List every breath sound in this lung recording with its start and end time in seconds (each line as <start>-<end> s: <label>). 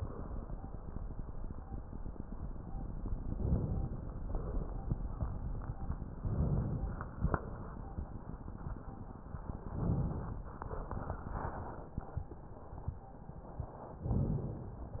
3.30-4.21 s: inhalation
4.22-4.93 s: exhalation
6.15-7.11 s: inhalation
7.12-7.84 s: exhalation
9.64-10.46 s: inhalation